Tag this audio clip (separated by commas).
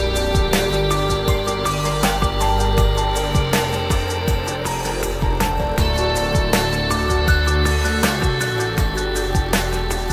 Music